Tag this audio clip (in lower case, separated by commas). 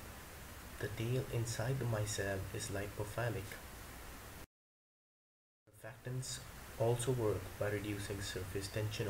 speech, waterfall